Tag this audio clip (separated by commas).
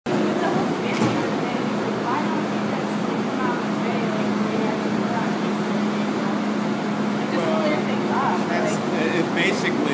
Vehicle, roadway noise